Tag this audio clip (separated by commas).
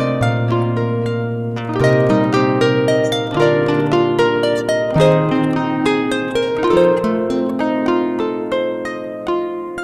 Music, playing harp, Harp